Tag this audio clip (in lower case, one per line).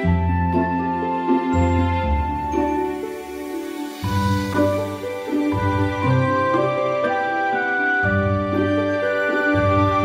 music